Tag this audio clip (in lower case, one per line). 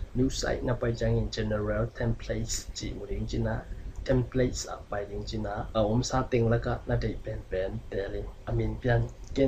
speech